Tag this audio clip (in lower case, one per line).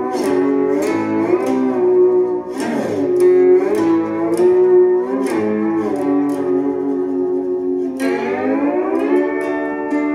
playing steel guitar